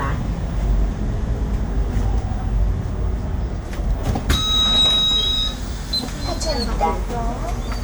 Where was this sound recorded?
on a bus